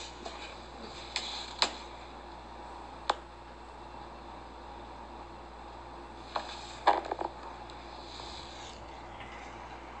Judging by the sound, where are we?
in an elevator